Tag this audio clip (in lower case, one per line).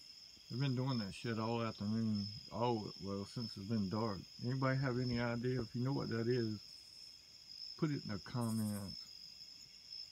speech